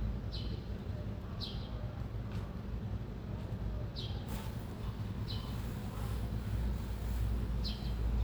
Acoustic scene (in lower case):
residential area